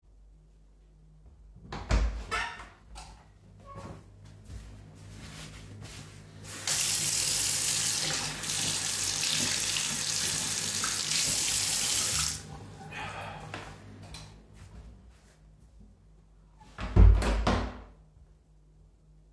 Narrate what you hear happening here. the phone laying on the sink I opened the door switched on the light walked in, turned on the water drank from the tab, turned it off, walked out, switched off the lights then closed the door.